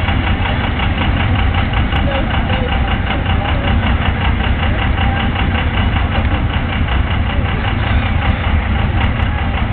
A truck engine running and people talking